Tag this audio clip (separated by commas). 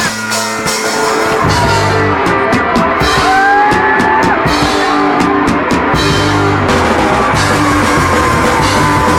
Music